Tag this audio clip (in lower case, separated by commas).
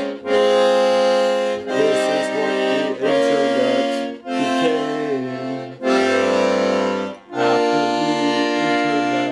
playing accordion